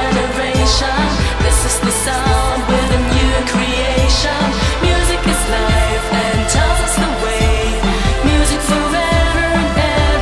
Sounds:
music

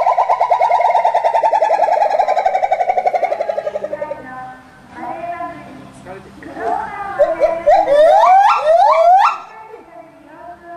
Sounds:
gibbon howling

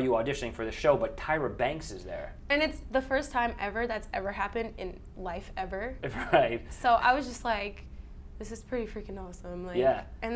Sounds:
inside a large room or hall, speech

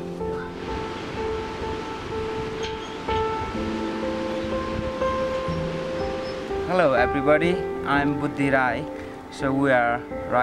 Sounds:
music, water, speech

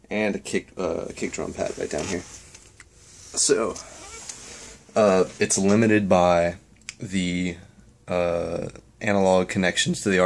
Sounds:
speech

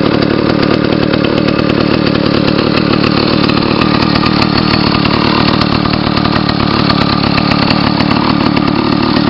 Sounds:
vehicle

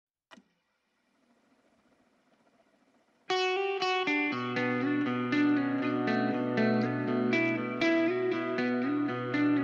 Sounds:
music

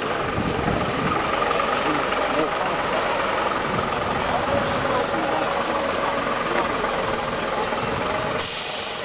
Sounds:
driving buses, bus, vehicle

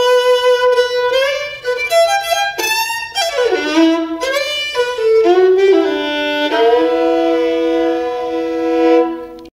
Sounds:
musical instrument, music, fiddle

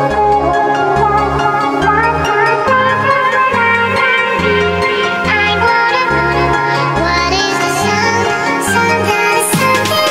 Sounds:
music

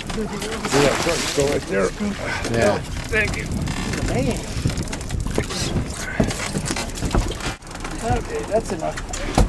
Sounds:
speech

